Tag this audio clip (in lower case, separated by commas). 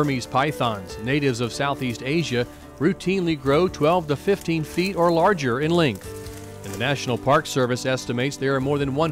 animal, music, speech, outside, rural or natural